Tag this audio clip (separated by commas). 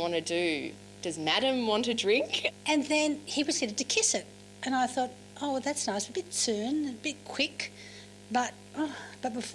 Conversation, Speech